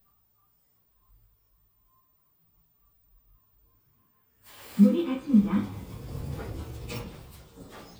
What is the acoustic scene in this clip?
elevator